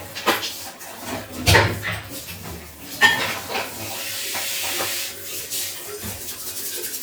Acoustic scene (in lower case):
restroom